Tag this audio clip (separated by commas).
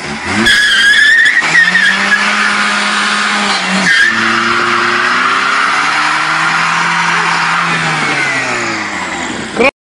Car, Skidding, Speech, Motor vehicle (road), Vehicle